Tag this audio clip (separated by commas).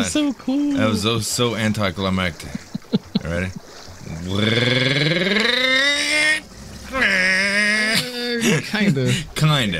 Speech